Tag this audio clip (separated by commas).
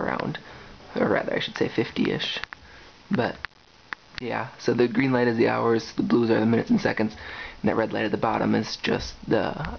Speech